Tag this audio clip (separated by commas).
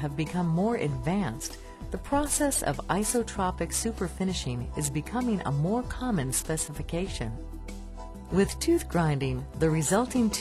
Music, Speech